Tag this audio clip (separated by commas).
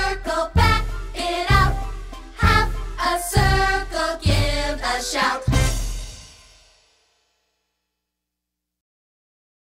Speech, Music